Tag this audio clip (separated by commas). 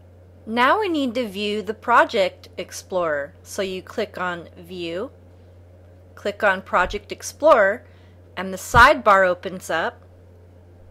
Speech